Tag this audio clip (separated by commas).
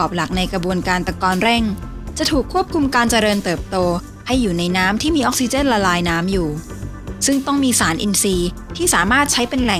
Speech, Music